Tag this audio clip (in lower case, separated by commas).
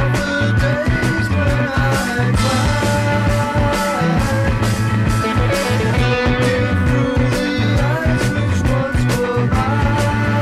music